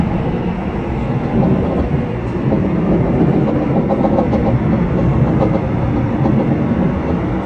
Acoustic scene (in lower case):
subway train